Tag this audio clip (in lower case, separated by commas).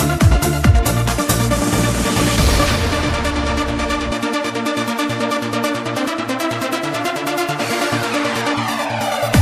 music, trance music